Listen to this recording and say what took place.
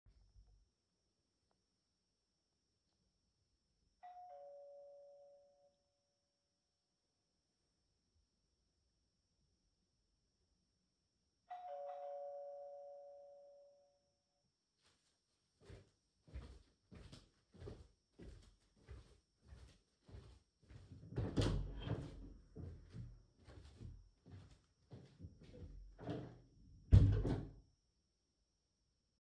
Someone rang the doorbell. I walked over to the front door and pulled it open to greet them.